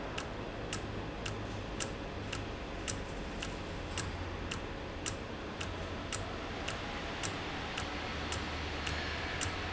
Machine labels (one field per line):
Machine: valve